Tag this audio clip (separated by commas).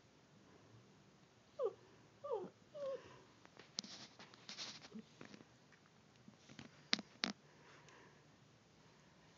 pets, Dog, Animal